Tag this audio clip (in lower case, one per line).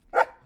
dog
domestic animals
bark
animal